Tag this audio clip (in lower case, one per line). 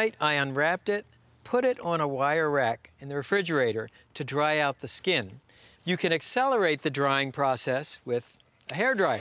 speech